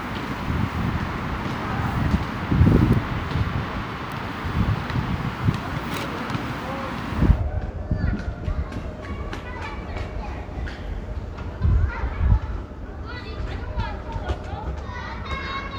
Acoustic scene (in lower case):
residential area